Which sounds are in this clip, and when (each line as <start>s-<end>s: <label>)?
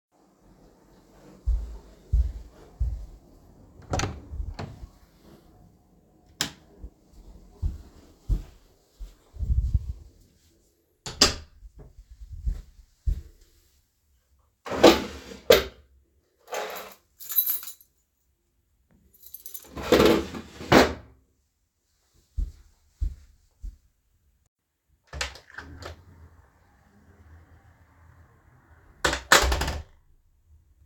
1.4s-3.2s: footsteps
3.8s-5.0s: door
6.3s-6.7s: light switch
7.4s-9.2s: footsteps
10.9s-11.6s: door
12.2s-13.3s: footsteps
14.6s-15.8s: wardrobe or drawer
16.5s-18.0s: keys
19.2s-19.8s: keys
19.8s-21.1s: wardrobe or drawer
22.3s-23.8s: footsteps
25.0s-26.1s: door
28.9s-30.0s: door